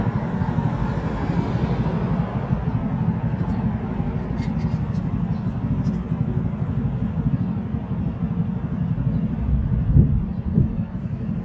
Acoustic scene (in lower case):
street